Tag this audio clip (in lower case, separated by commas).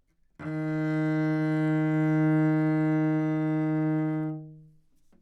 bowed string instrument, music, musical instrument